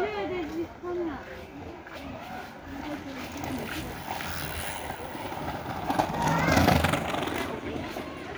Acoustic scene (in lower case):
park